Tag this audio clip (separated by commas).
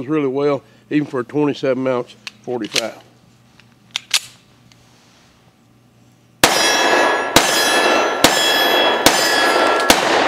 gunfire